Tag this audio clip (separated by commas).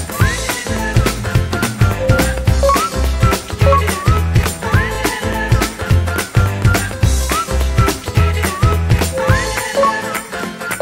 Funk, Music